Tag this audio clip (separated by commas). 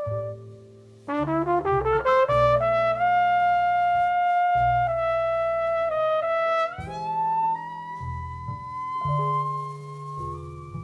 Trumpet, playing trumpet, Music